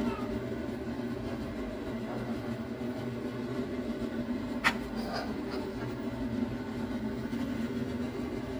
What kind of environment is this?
kitchen